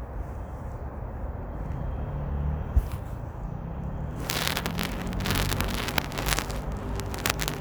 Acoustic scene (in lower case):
residential area